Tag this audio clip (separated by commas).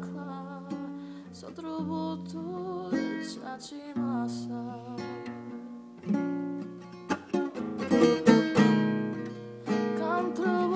Female singing, Music